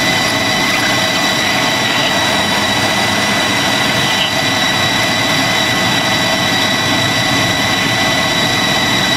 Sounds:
Vehicle, Fixed-wing aircraft

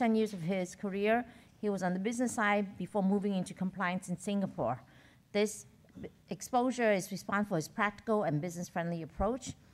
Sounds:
Narration, Speech synthesizer, Speech, Female speech

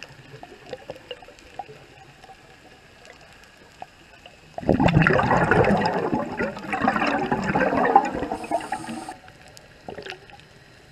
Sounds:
underwater bubbling

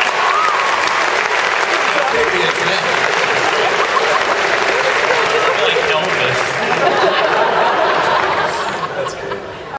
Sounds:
Speech

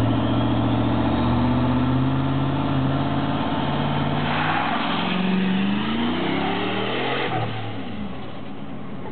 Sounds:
Car, Vehicle, Engine

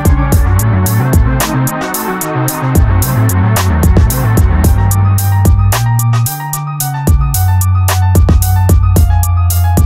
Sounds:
Music, Video game music

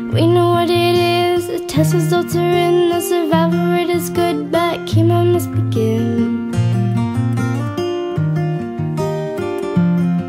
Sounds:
Music

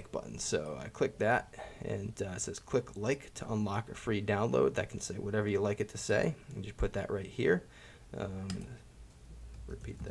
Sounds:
Speech

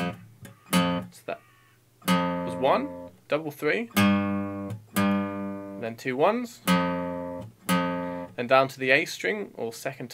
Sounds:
Musical instrument, Plucked string instrument, Acoustic guitar, Guitar, Strum

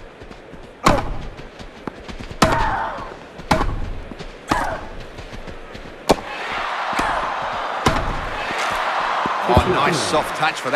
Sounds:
Speech

